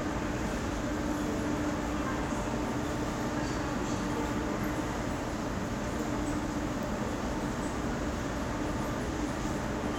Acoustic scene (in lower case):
subway station